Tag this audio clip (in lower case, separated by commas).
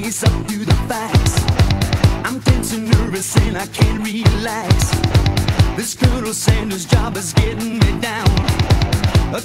music